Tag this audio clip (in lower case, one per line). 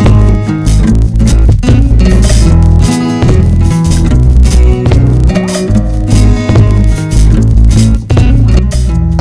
music
speech